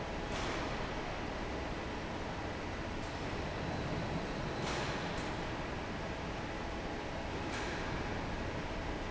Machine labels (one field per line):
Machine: fan